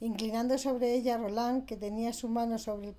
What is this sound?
speech